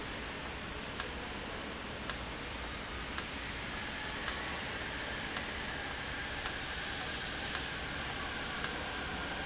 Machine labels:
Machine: valve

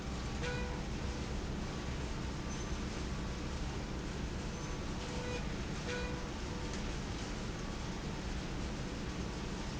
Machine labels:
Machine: slide rail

